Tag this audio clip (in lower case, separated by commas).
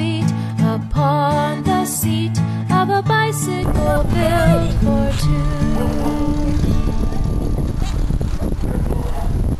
bicycle, music, vehicle